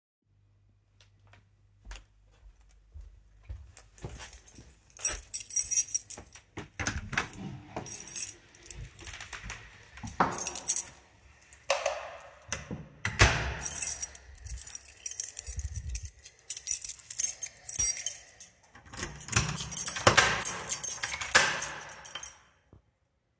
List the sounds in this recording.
footsteps, keys, door, toilet flushing, light switch